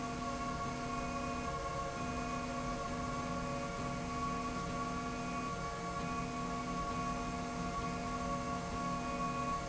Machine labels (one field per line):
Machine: slide rail